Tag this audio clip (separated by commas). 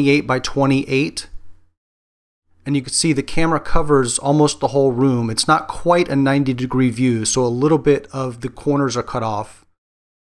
Speech